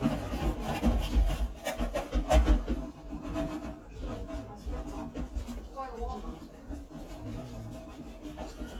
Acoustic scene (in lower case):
kitchen